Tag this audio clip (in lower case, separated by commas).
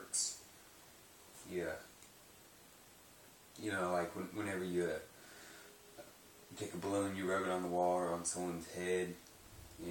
speech